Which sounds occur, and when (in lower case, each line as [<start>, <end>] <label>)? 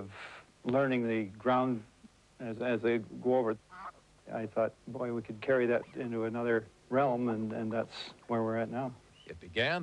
[0.00, 0.45] breathing
[0.00, 9.82] background noise
[0.61, 1.82] male speech
[0.61, 9.82] conversation
[0.63, 0.73] tick
[2.36, 3.56] male speech
[3.67, 3.92] bird call
[4.22, 6.61] male speech
[5.64, 6.03] bird call
[6.88, 8.07] male speech
[7.21, 8.20] bird call
[8.27, 8.93] male speech
[8.93, 9.30] bird call
[9.26, 9.82] male speech